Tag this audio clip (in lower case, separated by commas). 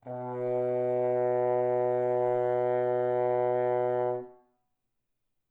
musical instrument, music, brass instrument